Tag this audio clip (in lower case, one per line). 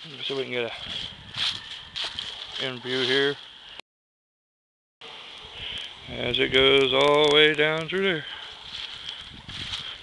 speech